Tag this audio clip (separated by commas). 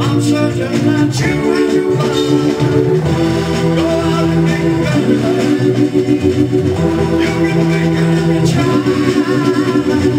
Music